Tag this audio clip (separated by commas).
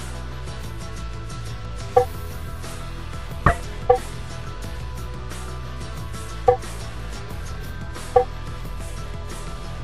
Music